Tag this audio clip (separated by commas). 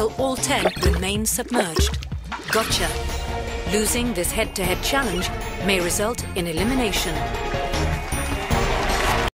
Speech, Music